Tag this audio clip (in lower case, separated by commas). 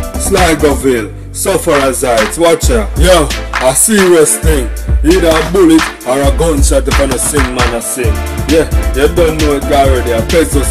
speech, music